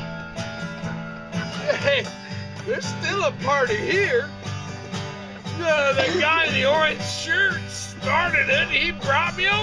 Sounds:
Music, Speech

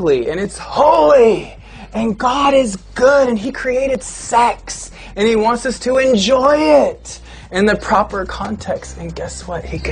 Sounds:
Speech, inside a small room, Music

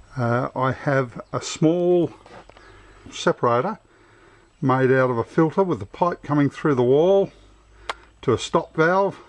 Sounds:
Speech

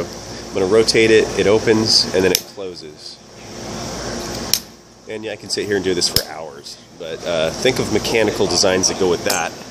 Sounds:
Speech

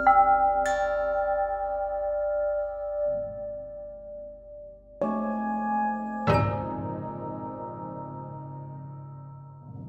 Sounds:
Music, Musical instrument

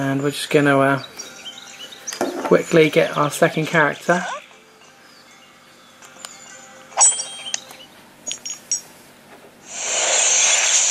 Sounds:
Speech, inside a small room, Music

